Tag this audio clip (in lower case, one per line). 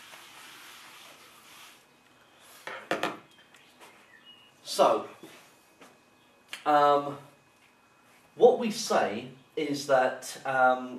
speech
inside a large room or hall